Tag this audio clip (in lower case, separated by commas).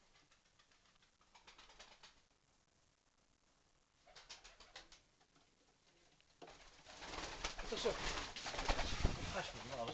speech, bird, pigeon, inside a small room